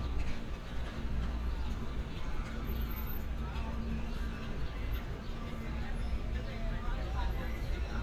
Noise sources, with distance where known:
music from an unclear source, far; person or small group talking, far

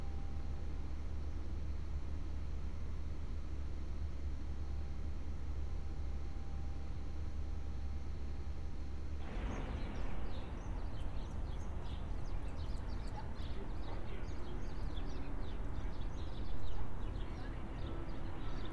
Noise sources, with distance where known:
background noise

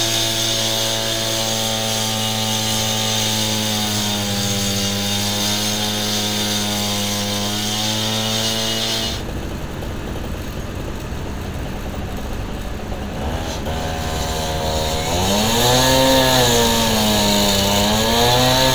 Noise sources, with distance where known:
unidentified powered saw

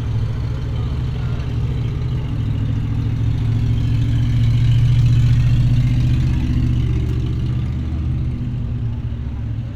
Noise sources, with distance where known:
medium-sounding engine, near

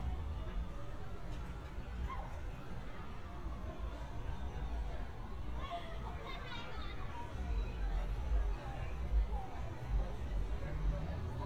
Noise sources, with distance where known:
siren, far; unidentified human voice

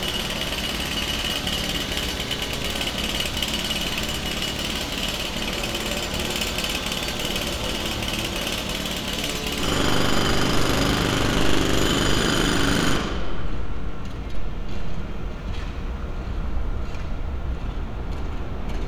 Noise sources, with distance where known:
jackhammer, near

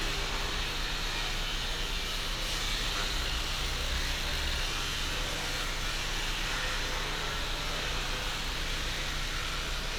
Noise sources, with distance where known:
small or medium rotating saw

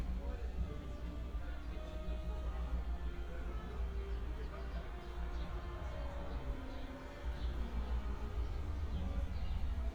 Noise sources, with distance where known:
music from a fixed source, far; person or small group talking, far

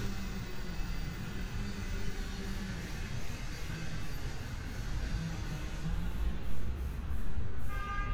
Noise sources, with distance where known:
car horn, far

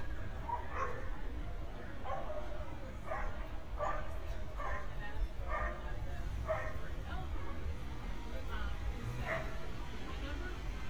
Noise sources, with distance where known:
person or small group talking, near; dog barking or whining, near

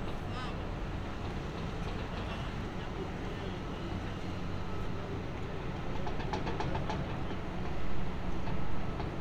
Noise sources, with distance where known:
person or small group talking, far

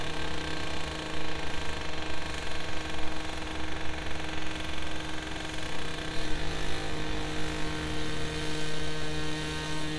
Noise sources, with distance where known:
unidentified impact machinery, near

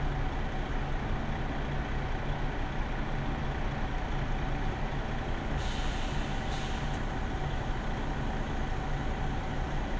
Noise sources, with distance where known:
large-sounding engine, near

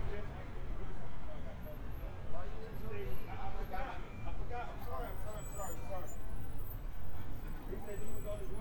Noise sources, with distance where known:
person or small group talking, near

